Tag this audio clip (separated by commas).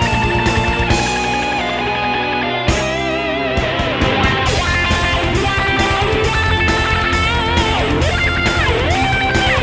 Electric guitar, Bass guitar, Strum, Music, Plucked string instrument, Musical instrument, Guitar